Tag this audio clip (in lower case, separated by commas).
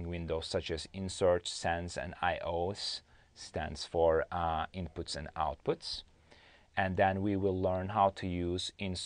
speech